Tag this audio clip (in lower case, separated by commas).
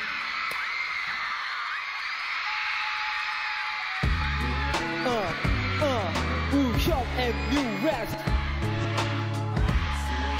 music